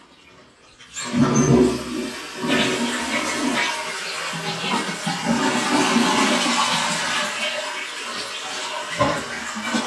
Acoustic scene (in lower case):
restroom